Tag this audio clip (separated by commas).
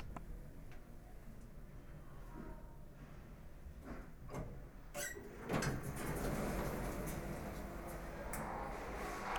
Sliding door, Door, Domestic sounds